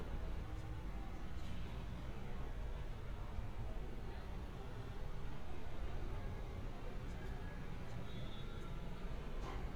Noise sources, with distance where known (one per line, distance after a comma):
medium-sounding engine, far
car horn, far